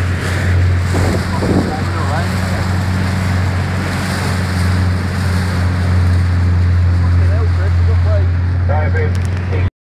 Wind blowing and water splashes as an engine roars then a person speaks